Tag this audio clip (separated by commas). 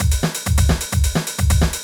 Musical instrument, Drum kit, Music, Percussion